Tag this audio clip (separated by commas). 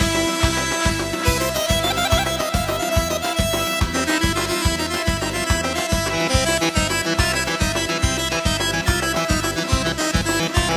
Music, Dance music